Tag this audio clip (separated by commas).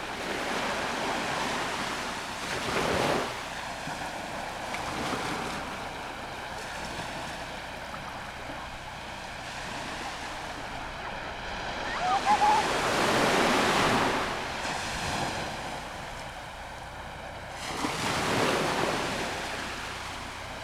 Water, Ocean